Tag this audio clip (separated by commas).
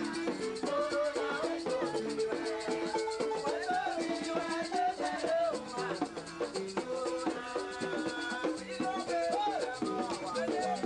Music, Folk music, Blues, Rhythm and blues, Dance music